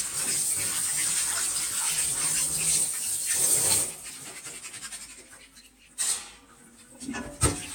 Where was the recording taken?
in a kitchen